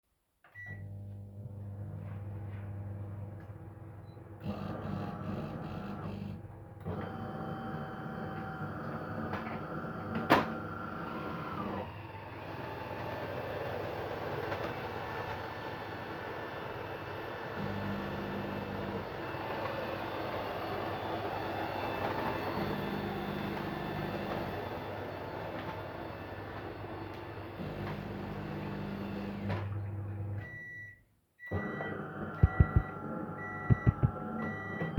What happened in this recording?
I turned on the microwave and while it was running i turned on the coffee machine. While both were running i started vacuuming.